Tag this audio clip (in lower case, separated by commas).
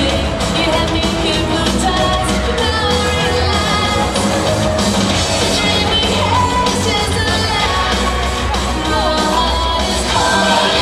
rock and roll